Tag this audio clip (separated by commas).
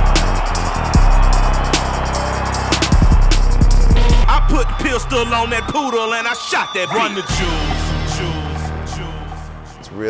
Music